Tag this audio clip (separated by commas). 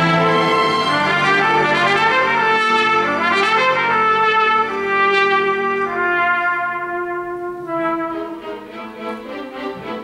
Bowed string instrument, Cello, fiddle, Double bass